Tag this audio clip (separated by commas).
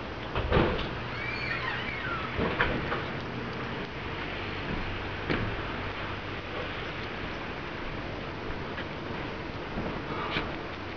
Animal, pets, Dog